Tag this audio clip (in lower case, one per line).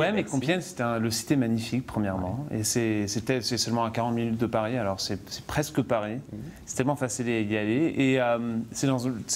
speech